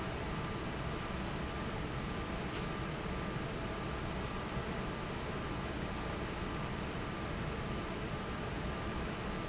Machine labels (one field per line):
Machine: fan